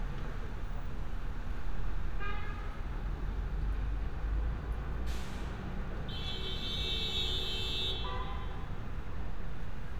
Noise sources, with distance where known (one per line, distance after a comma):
large-sounding engine, near
car horn, near